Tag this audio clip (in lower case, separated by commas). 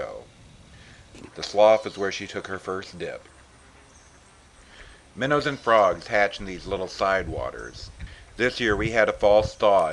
speech